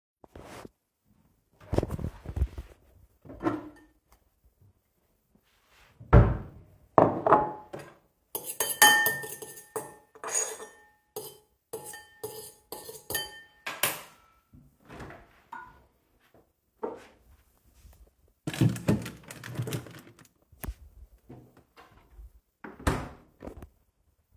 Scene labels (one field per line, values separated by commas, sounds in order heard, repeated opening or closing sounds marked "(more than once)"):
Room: kitchen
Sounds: cutlery and dishes, wardrobe or drawer